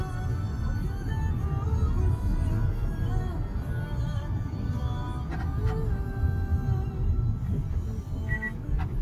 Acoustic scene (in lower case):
car